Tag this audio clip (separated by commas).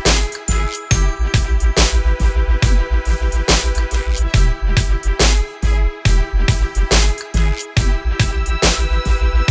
Dubstep, Electronic music, Music